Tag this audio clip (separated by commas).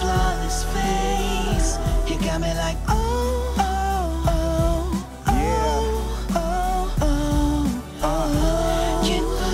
Jazz, Pop music, Soundtrack music, Music